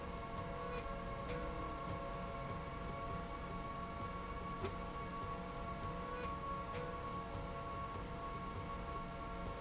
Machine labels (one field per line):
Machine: slide rail